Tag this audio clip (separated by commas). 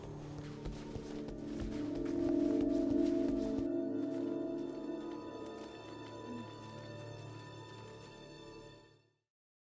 Music